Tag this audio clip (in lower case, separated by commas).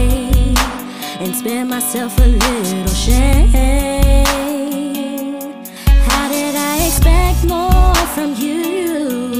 music, exciting music